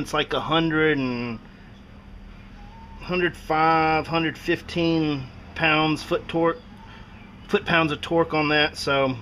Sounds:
Speech

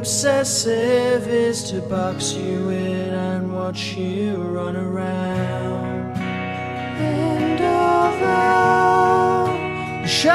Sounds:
Tender music, Music

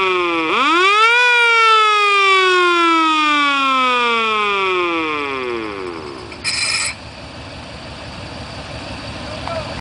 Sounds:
Police car (siren), Emergency vehicle, Siren

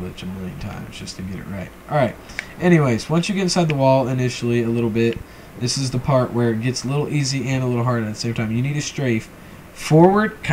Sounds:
Speech

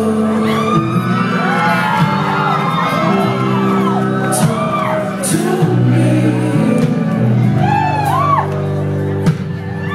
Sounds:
Music

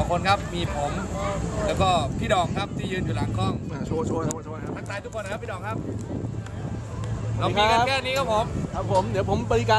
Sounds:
Speech

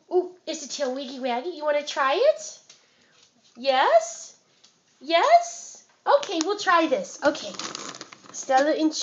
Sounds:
Speech

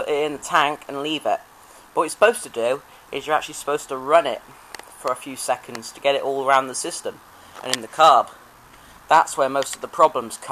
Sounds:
Speech

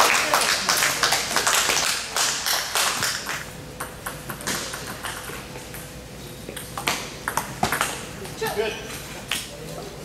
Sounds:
Speech

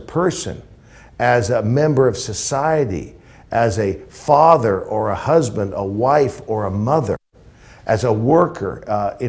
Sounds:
Speech, inside a small room

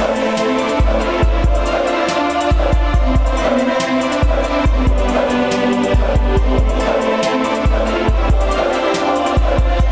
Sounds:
Pop music, Music

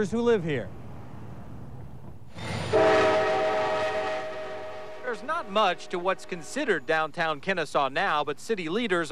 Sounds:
Vehicle, Train horn, Speech

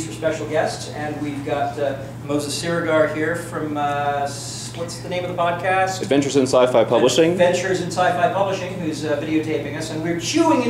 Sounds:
Speech

